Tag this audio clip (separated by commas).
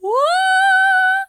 Human voice, Female singing, Singing